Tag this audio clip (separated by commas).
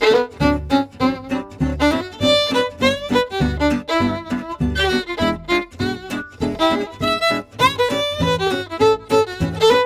Music, Musical instrument, fiddle